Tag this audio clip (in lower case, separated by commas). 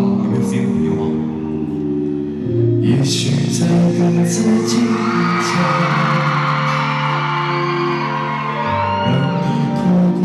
male singing, music